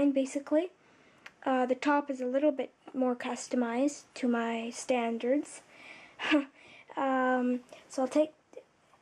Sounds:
speech

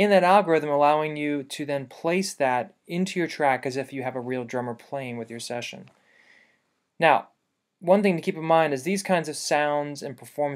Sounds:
speech

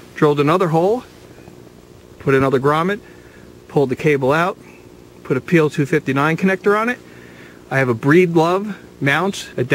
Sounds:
vehicle, speech, outside, rural or natural

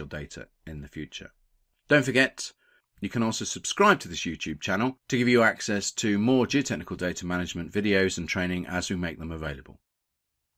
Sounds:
speech

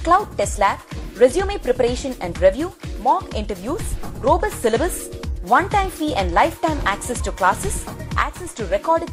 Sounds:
speech, music

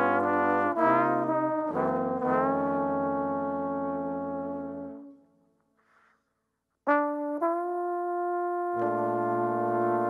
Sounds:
trombone, brass instrument, music

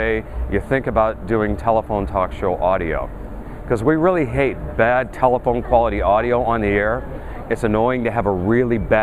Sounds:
speech

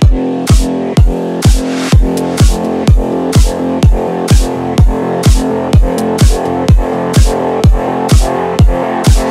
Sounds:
music

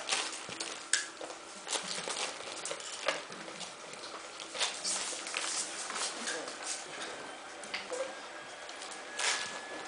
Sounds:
speech

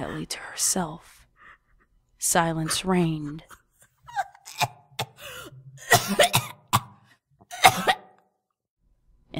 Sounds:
speech

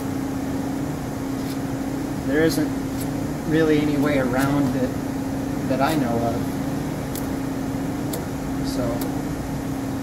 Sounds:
speech, inside a large room or hall

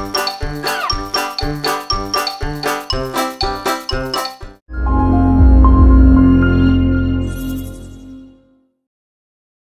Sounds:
music

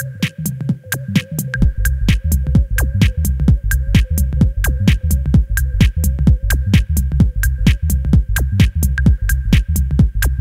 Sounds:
techno, music

